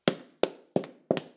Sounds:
run

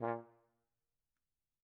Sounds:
brass instrument
music
musical instrument

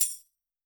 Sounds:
music
tambourine
musical instrument
percussion

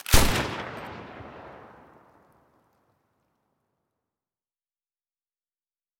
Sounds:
explosion
gunshot

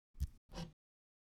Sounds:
tools
hammer

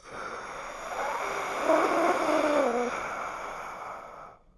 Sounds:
breathing
respiratory sounds

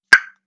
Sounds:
explosion

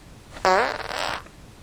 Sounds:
fart

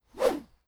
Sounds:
swish

